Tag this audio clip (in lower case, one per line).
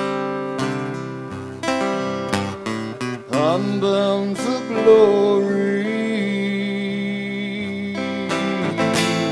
music
country